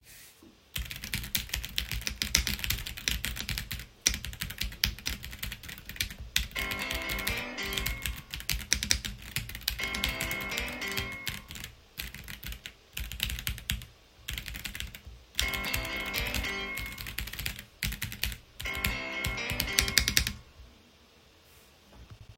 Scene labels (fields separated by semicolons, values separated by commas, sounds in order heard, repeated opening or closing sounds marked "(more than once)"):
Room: bedroom; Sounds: keyboard typing, phone ringing